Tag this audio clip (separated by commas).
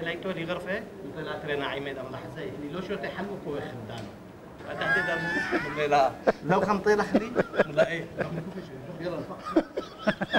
Speech